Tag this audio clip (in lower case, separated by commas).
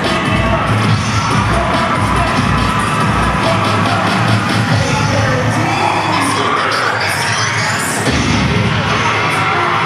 cheering, crowd, children shouting